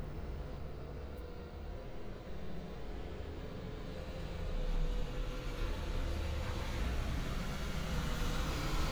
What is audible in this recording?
medium-sounding engine